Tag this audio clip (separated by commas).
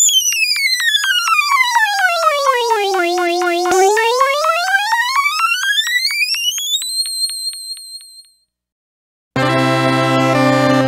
Music, Synthesizer, Musical instrument